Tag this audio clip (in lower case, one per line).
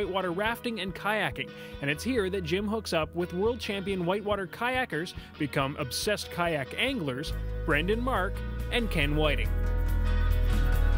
speech
music